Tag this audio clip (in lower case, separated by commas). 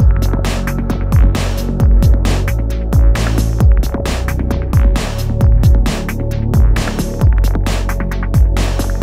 music